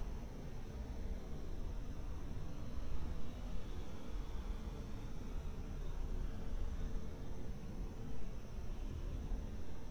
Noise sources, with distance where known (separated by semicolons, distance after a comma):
background noise